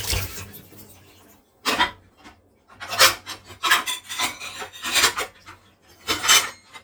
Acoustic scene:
kitchen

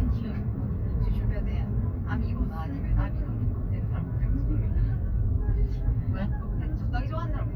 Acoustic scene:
car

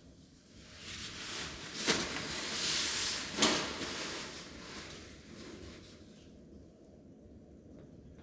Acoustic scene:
elevator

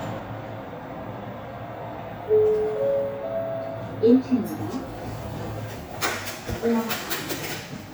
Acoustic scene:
elevator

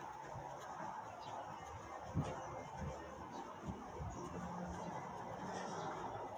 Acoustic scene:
residential area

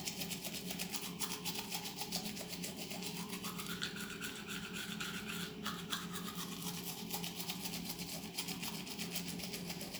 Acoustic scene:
restroom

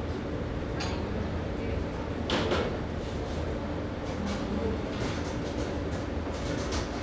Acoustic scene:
restaurant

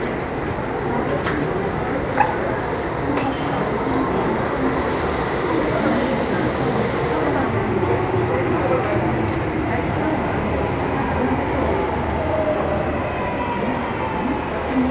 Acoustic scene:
subway station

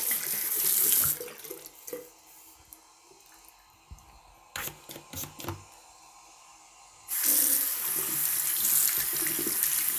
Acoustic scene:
restroom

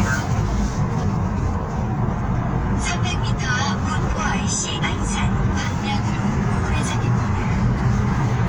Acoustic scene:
car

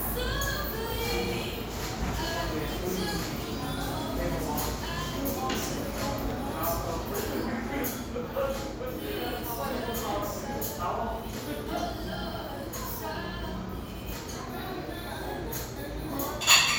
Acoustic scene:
cafe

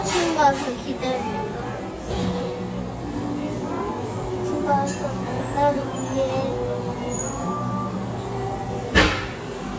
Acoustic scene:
cafe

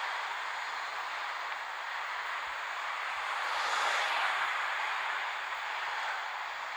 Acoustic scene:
street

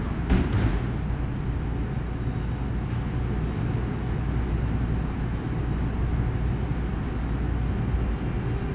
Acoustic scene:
subway station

